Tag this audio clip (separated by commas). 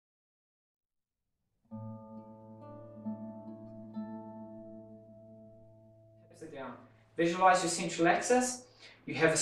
Music, Speech